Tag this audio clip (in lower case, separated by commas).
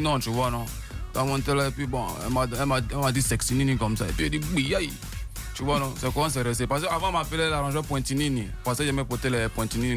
speech, radio, music